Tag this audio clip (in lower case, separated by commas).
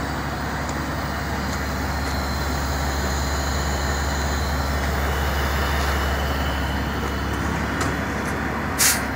truck, vehicle